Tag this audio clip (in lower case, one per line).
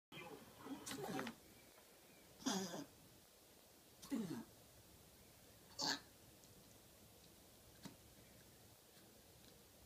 animal
pets
sneeze
dog